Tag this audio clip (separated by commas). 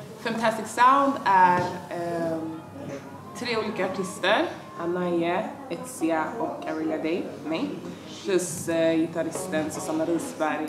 Speech